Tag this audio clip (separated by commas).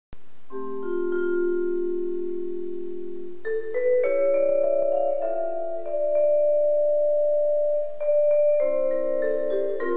playing vibraphone, Vibraphone, Music, Musical instrument, Percussion